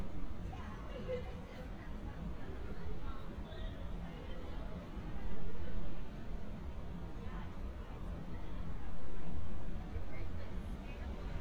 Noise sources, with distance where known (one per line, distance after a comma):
unidentified human voice, far